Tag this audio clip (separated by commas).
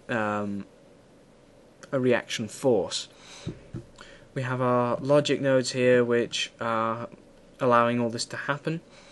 Speech